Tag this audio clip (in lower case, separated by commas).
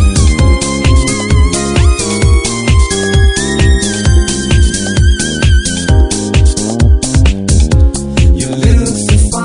music, electronica